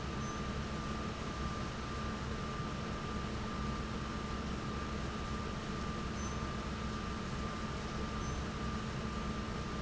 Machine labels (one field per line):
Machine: fan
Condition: normal